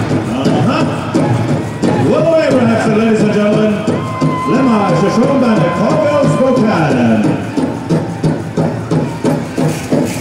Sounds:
Speech, Music

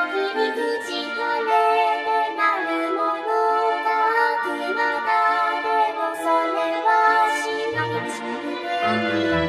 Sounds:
Music

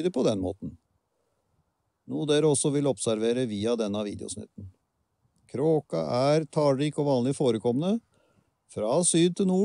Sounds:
Speech

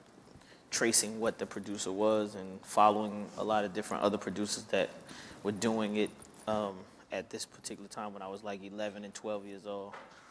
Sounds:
Speech

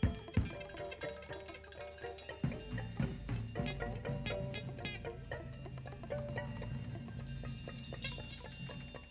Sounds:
Percussion, Music

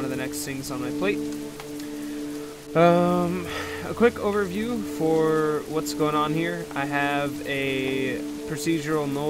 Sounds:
Music, Speech

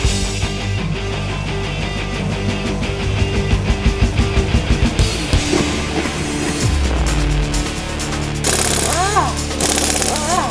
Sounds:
Music

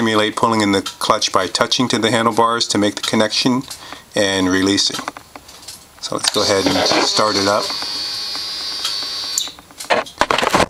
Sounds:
Speech, Electric shaver

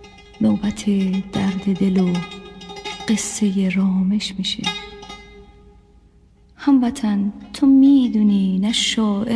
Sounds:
Music

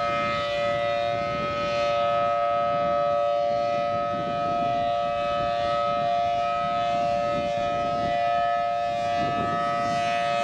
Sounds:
Civil defense siren

